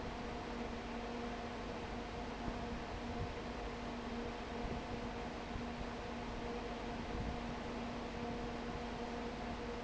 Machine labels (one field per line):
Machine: fan